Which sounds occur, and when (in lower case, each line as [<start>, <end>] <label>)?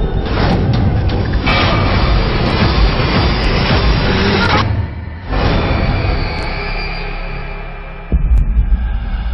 [0.00, 9.33] music
[4.42, 4.69] human sounds